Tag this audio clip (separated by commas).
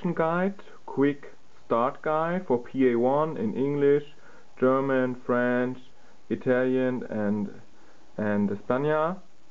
Speech